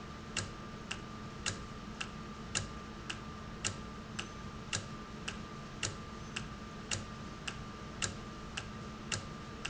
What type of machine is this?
valve